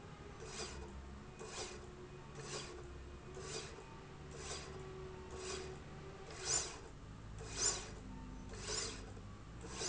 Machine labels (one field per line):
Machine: slide rail